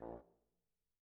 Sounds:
Musical instrument, Brass instrument, Music

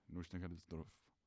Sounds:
man speaking, Speech, Human voice

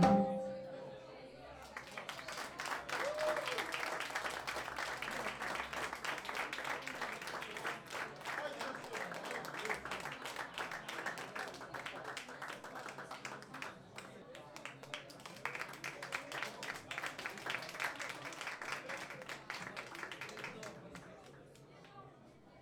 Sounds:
Applause, Human group actions

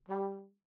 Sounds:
Musical instrument, Music, Brass instrument

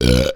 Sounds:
eructation

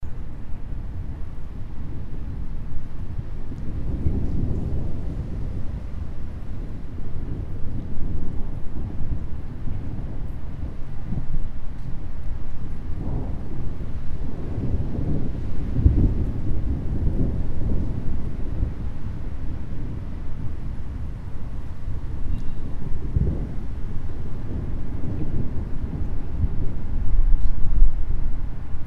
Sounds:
Thunder, Thunderstorm

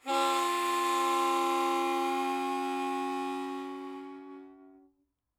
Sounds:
Musical instrument, Music, Harmonica

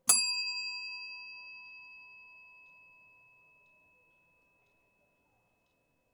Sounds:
Bell

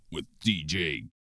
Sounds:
Human voice

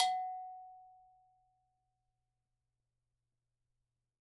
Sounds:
Bell

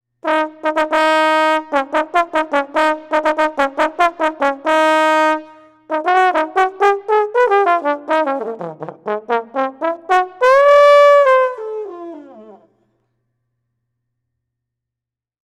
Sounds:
Brass instrument, Music, Musical instrument

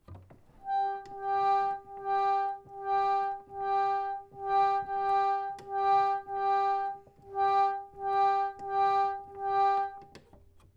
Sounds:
Organ, Keyboard (musical), Musical instrument, Music

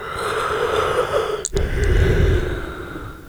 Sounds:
Human voice

